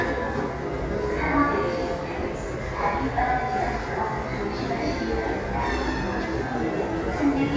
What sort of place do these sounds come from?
subway station